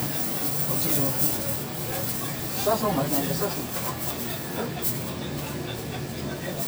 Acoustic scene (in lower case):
crowded indoor space